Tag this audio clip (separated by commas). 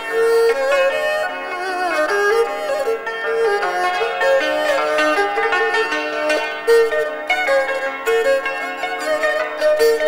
playing erhu